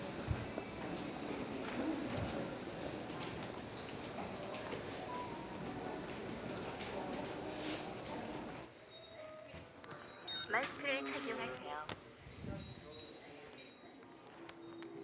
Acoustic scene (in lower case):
subway station